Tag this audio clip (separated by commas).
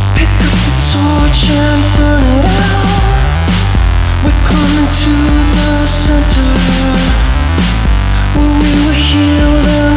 Music